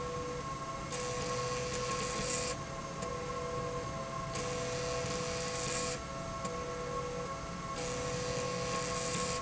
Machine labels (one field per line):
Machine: slide rail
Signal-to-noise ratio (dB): -6 dB